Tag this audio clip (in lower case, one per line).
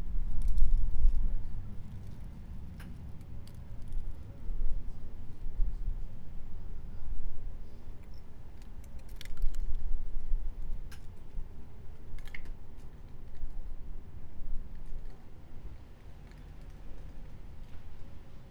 wind